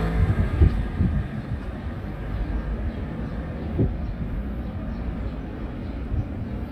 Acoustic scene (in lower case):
residential area